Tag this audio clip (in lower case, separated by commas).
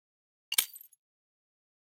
shatter, glass